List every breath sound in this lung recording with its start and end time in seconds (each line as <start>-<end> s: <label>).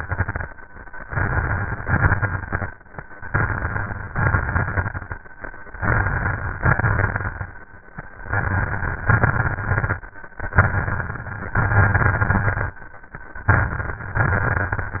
0.00-0.40 s: exhalation
0.00-0.40 s: crackles
1.02-1.82 s: inhalation
1.02-1.82 s: crackles
1.84-2.69 s: exhalation
1.84-2.69 s: crackles
3.27-4.08 s: crackles
3.28-4.14 s: inhalation
4.11-5.13 s: exhalation
4.12-5.14 s: crackles
5.79-6.60 s: inhalation
5.79-6.60 s: crackles
6.60-7.57 s: exhalation
6.60-7.57 s: crackles
8.21-9.06 s: inhalation
8.21-9.06 s: crackles
9.09-10.02 s: exhalation
9.09-10.02 s: crackles
10.43-11.56 s: inhalation
10.43-11.56 s: crackles
11.58-12.78 s: exhalation
11.58-12.78 s: crackles
13.51-14.21 s: inhalation
13.51-14.21 s: crackles
14.23-15.00 s: exhalation
14.23-15.00 s: crackles